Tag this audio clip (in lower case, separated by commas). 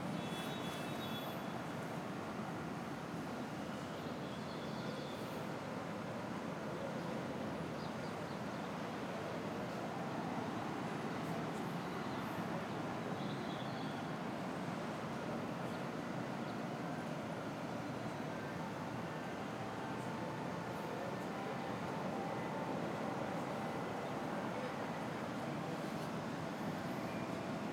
traffic noise, vehicle, motor vehicle (road)